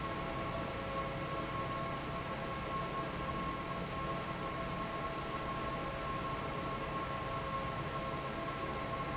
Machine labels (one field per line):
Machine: fan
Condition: normal